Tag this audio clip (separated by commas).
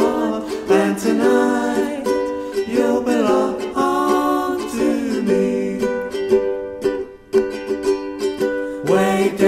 Ukulele, Music